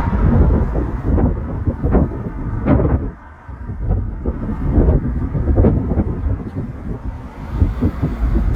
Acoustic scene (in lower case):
street